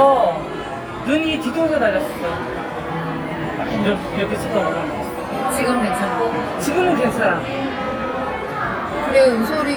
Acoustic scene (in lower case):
crowded indoor space